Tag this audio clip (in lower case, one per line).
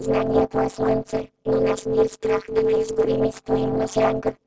human voice
speech